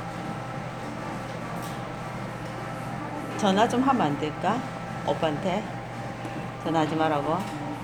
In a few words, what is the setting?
cafe